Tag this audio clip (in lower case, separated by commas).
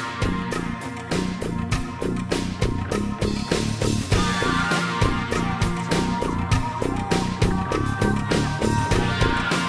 music